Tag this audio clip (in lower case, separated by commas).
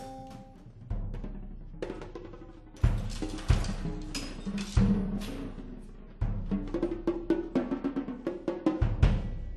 drum roll, musical instrument, timpani, music